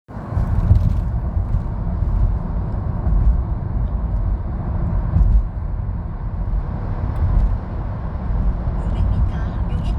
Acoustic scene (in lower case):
car